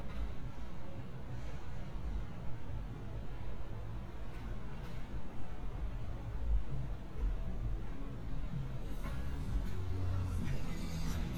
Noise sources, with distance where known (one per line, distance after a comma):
medium-sounding engine
music from a moving source